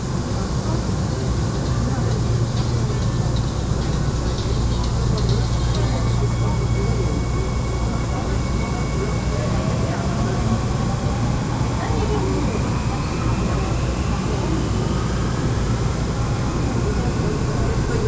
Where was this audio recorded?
on a subway train